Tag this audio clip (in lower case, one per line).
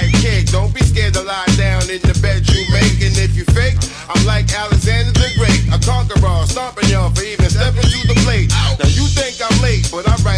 music